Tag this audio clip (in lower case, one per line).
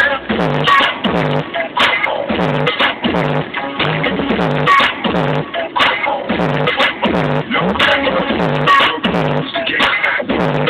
music
exciting music